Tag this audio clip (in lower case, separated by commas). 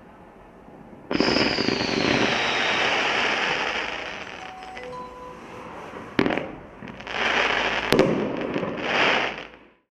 music